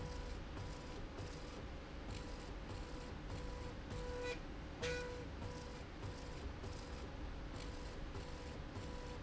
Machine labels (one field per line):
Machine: slide rail